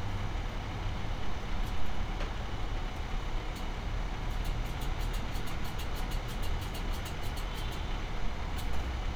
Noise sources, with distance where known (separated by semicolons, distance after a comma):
unidentified impact machinery, near